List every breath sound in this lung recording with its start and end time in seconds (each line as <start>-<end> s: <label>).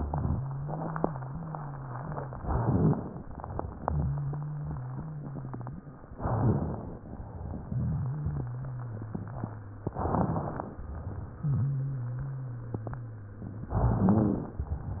0.34-2.32 s: wheeze
2.32-3.20 s: rhonchi
2.34-3.22 s: inhalation
3.22-6.10 s: exhalation
3.86-5.91 s: wheeze
6.16-7.10 s: crackles
6.18-7.12 s: inhalation
7.14-9.82 s: exhalation
7.63-9.83 s: wheeze
9.82-10.76 s: crackles
9.84-10.78 s: inhalation
10.82-13.64 s: exhalation
11.39-13.59 s: wheeze
13.65-14.60 s: rhonchi
13.68-14.62 s: inhalation
14.62-15.00 s: exhalation